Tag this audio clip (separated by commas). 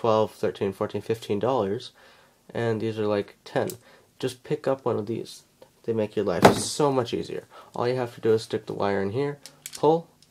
Speech, Tools